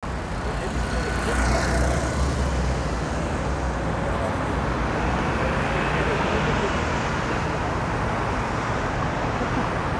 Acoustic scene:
street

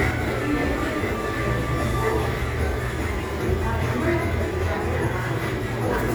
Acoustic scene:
crowded indoor space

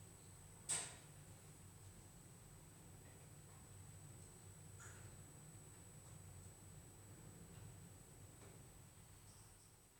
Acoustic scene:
elevator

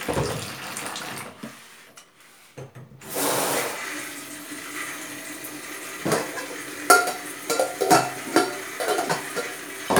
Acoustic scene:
kitchen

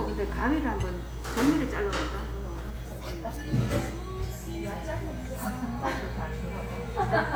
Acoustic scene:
restaurant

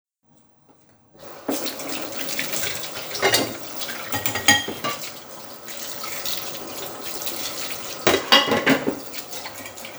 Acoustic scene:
kitchen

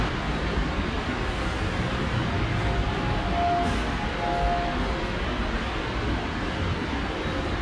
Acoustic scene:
subway station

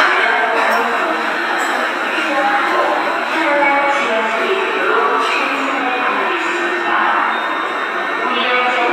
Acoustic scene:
subway station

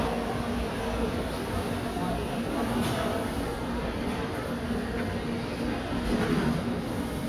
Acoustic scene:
crowded indoor space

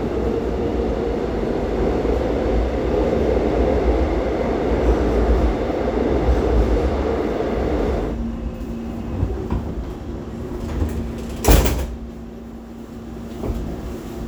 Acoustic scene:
subway train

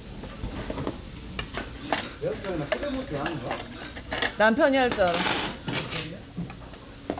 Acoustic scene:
restaurant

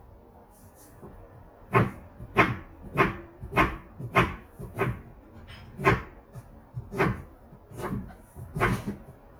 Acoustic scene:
kitchen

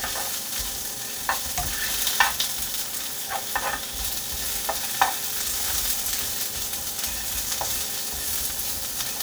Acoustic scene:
kitchen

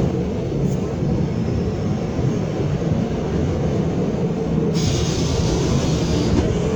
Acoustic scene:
subway train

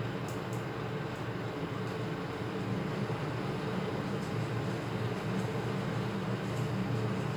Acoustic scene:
elevator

